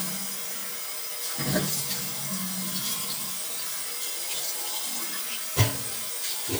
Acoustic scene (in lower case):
restroom